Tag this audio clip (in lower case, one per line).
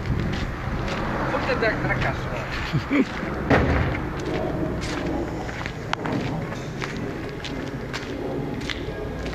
speech